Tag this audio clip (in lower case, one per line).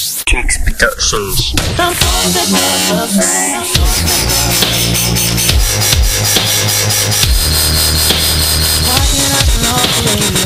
dubstep
music